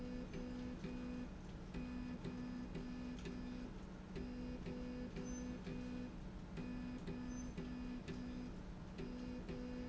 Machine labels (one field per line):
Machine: slide rail